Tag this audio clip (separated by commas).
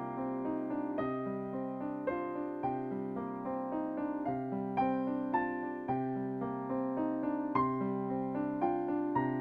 Musical instrument, Piano, Music, Electric piano, Keyboard (musical)